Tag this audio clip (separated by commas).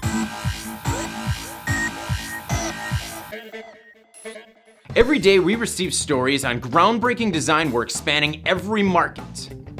Speech, Music